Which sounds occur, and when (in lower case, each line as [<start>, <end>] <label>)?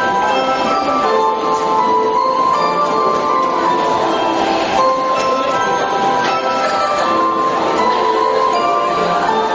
[0.00, 9.54] music